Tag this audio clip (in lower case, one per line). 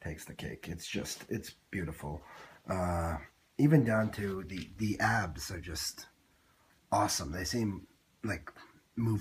speech